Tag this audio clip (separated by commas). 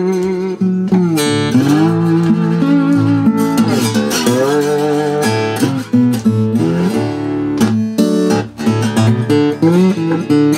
Guitar, Blues, Bowed string instrument, Music, slide guitar, Musical instrument, Tapping (guitar technique)